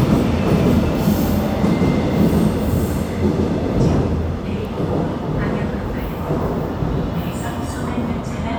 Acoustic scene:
subway station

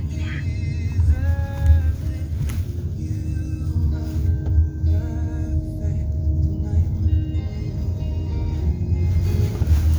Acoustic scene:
car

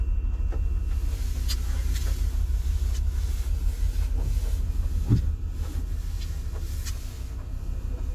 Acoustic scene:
car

